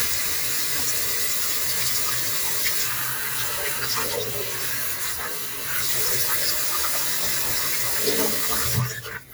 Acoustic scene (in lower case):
kitchen